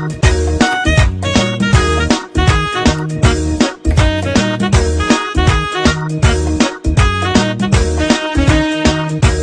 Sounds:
music

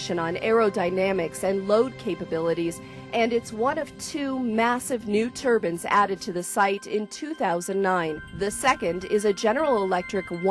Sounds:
speech
music

